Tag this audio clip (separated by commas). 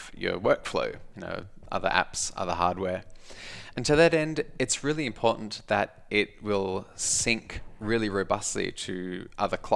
Speech